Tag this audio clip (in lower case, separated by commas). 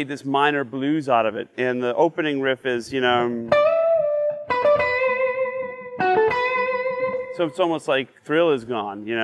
music, speech, guitar, plucked string instrument, acoustic guitar, musical instrument